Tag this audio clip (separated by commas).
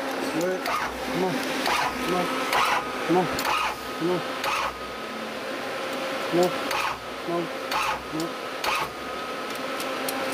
Tools, outside, rural or natural, Speech, Vehicle